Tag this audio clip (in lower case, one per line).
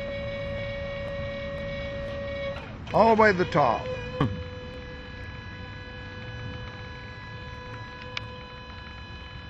speech